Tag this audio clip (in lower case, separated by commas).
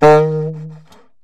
wind instrument, musical instrument, music